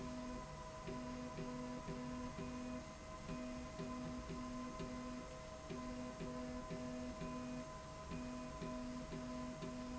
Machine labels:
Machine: slide rail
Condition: normal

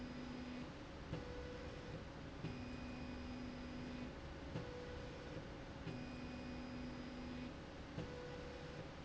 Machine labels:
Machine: slide rail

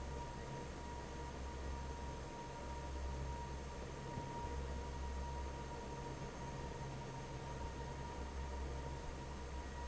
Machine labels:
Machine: fan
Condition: normal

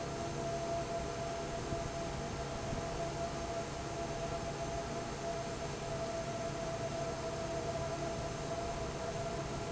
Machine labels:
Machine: fan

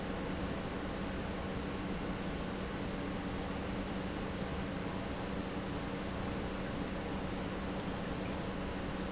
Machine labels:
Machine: pump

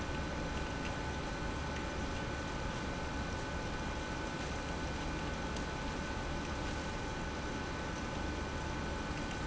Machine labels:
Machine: pump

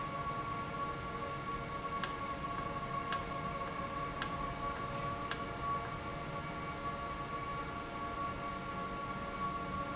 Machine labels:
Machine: valve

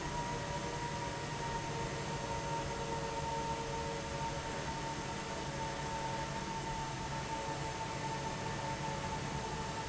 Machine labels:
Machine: fan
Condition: abnormal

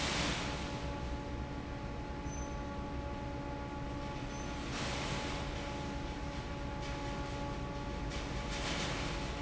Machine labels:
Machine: fan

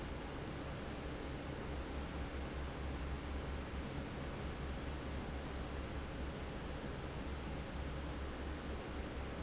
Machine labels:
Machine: fan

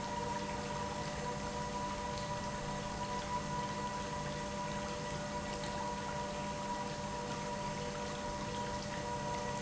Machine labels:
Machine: pump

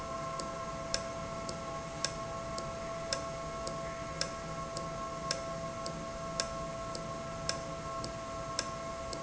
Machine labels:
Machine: valve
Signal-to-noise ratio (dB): -6 dB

